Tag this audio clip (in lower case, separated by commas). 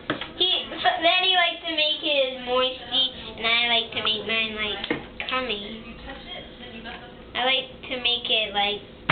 kid speaking, speech